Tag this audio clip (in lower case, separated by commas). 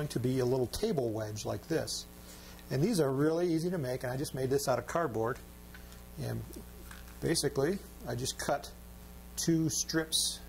speech